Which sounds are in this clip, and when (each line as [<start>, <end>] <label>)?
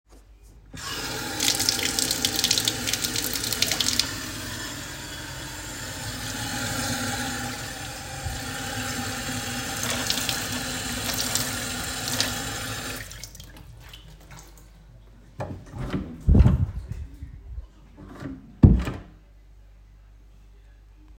[0.68, 14.71] running water
[15.31, 19.19] door